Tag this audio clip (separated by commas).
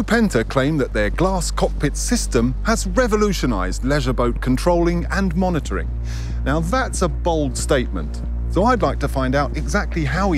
Speech